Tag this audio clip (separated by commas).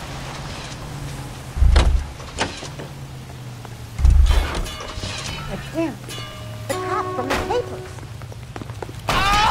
Speech, Vehicle